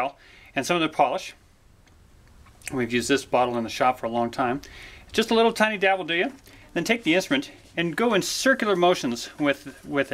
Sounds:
Speech

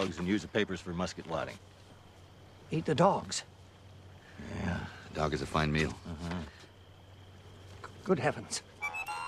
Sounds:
Music, Speech

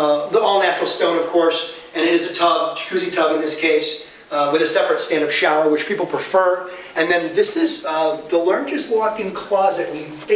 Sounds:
Speech

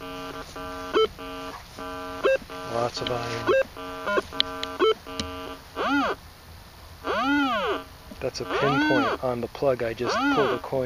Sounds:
Speech

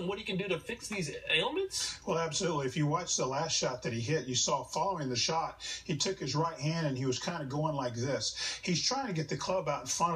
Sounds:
Speech

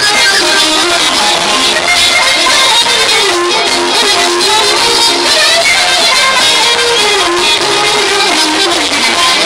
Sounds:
Background music, Music

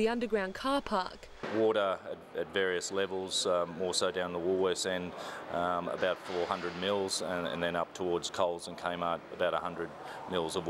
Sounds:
Speech

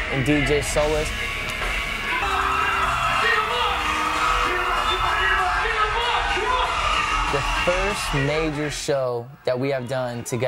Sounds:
Music, Speech

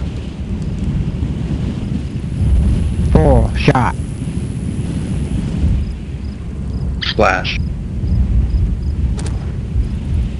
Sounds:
Speech

